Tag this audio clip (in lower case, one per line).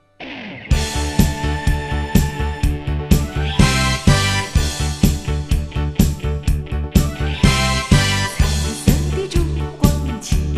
music